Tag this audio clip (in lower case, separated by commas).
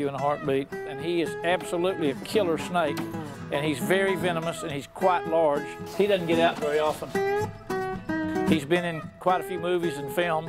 inside a small room, speech, music